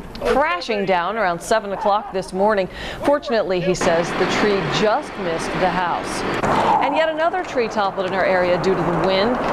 A woman speaking, wind blowing